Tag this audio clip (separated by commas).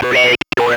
Speech, Human voice